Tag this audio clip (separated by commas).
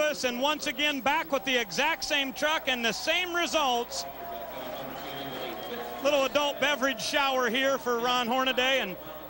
Speech